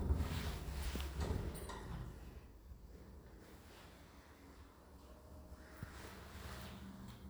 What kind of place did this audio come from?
elevator